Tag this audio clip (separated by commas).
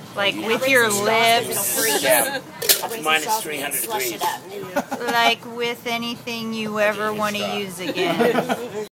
Speech